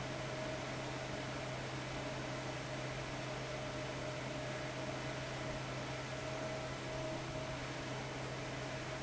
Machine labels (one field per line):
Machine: fan